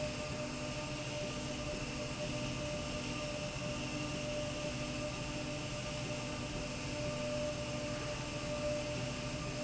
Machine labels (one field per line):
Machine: slide rail